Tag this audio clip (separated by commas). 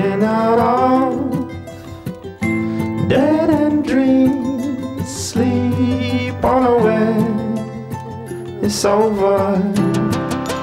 Music